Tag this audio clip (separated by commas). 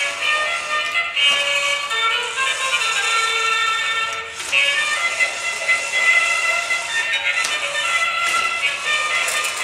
Music